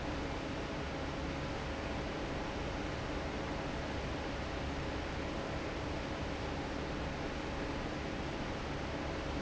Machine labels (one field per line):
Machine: fan